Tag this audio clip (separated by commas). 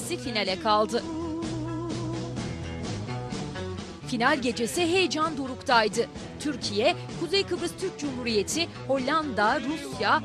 Music, Speech